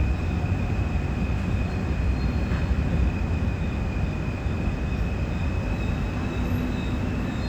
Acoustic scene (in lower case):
subway train